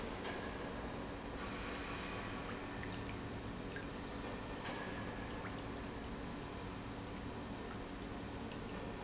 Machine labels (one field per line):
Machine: pump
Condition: normal